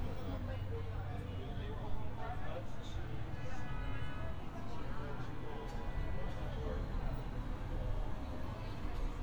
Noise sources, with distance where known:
car horn, far; person or small group talking, far

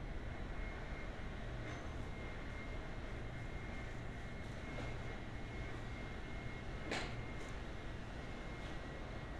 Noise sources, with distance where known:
engine of unclear size, far; reverse beeper, far

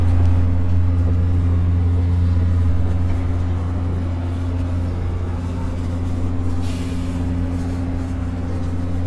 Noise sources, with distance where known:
engine of unclear size, near

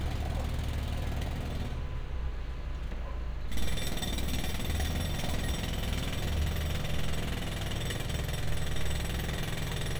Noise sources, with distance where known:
engine of unclear size; jackhammer, near

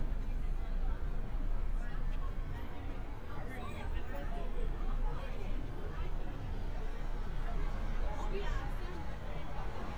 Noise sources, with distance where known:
person or small group talking, far

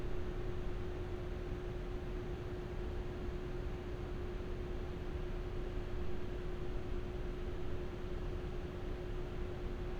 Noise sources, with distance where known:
background noise

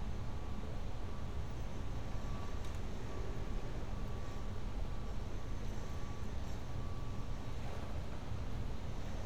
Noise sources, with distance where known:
background noise

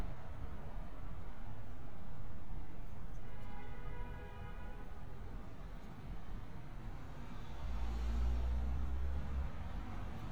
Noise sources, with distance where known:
background noise

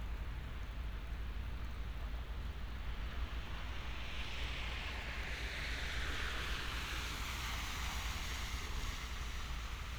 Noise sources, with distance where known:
medium-sounding engine

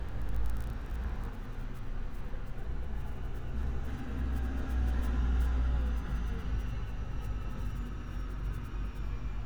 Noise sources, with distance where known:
engine of unclear size

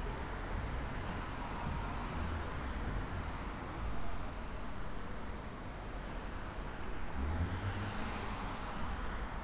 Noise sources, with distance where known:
engine of unclear size

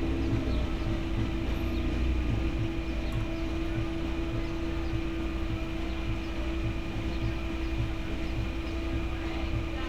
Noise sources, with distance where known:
music from an unclear source, far

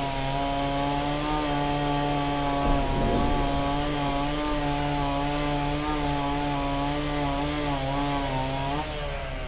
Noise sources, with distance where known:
chainsaw, near

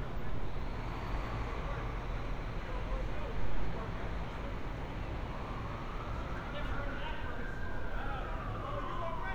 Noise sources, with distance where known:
siren, far; unidentified human voice

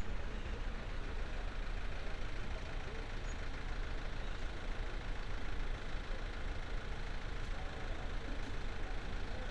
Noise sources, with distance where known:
engine of unclear size

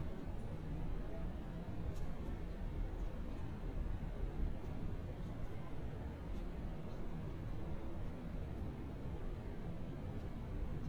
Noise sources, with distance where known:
engine of unclear size

